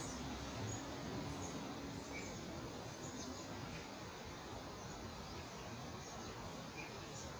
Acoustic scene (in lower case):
park